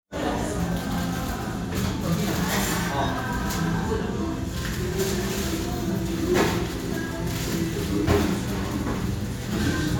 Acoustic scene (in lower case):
restaurant